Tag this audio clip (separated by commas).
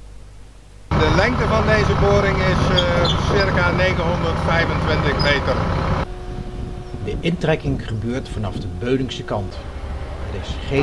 Speech, Vehicle